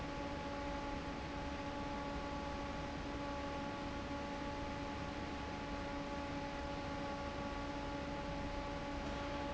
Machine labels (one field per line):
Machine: fan